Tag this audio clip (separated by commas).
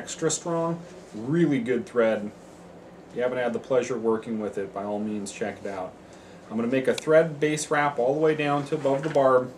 Speech